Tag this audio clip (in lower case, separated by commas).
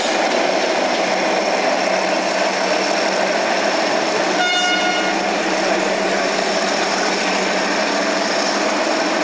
vehicle, railroad car, rail transport, train